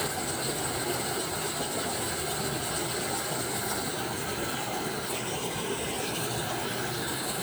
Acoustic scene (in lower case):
park